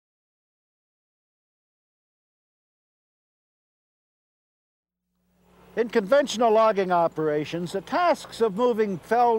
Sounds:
speech

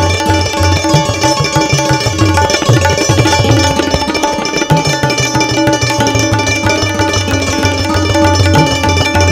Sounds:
playing tabla

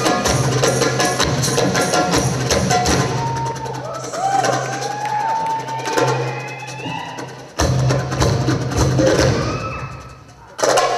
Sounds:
music

